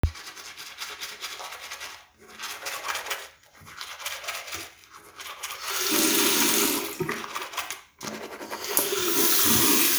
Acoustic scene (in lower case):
restroom